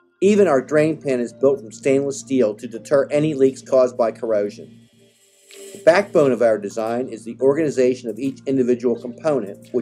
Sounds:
Speech

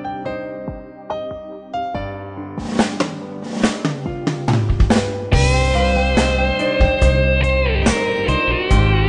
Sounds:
Music

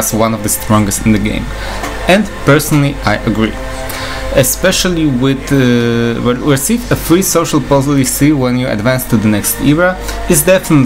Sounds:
Speech, Music

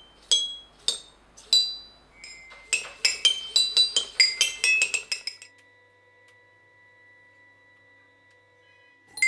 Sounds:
playing glockenspiel

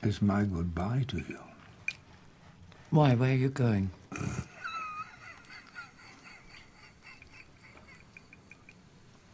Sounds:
Speech

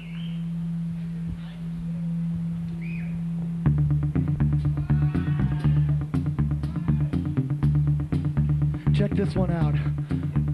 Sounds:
Speech, Music

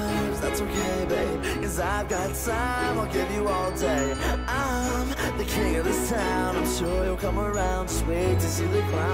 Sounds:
Music

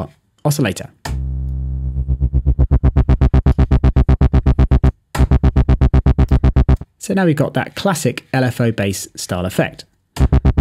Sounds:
Speech, Music

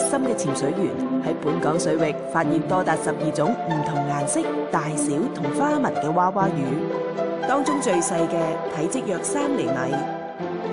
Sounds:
Music, Speech

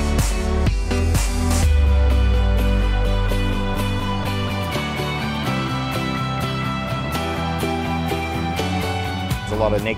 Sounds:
Speech, Music

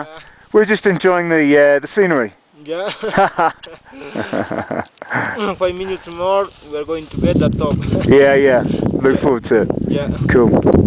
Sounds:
outside, rural or natural, Speech

